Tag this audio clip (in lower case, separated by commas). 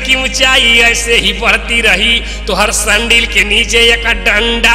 speech